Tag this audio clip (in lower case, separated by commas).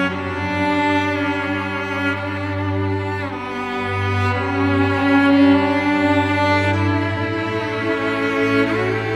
violin, musical instrument, music, sad music